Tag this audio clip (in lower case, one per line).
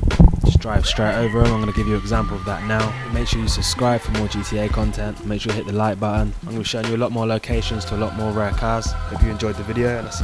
music
speech